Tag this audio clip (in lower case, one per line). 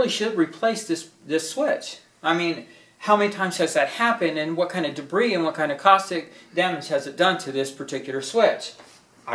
speech